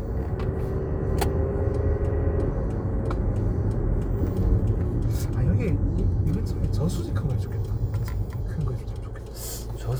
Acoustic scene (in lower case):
car